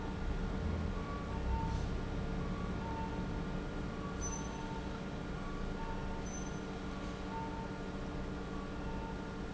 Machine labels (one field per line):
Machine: pump